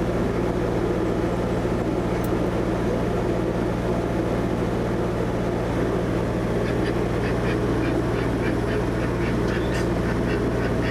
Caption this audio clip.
Duck quacking with wind